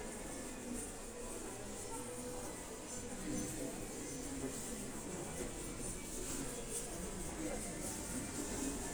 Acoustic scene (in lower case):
crowded indoor space